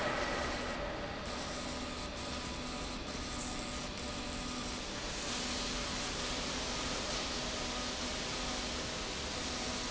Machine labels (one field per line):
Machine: slide rail